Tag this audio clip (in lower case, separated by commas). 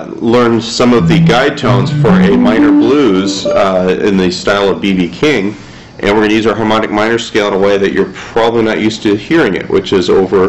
music, speech